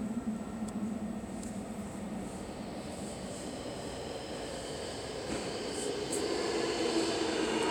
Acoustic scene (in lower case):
subway station